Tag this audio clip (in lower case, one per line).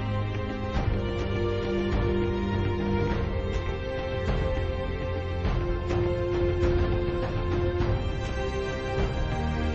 music